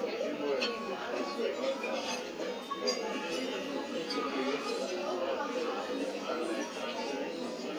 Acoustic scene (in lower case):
restaurant